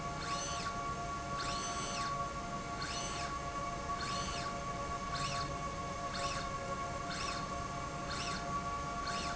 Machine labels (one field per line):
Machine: slide rail